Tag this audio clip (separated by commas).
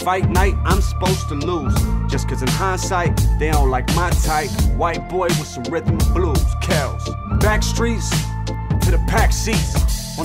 Music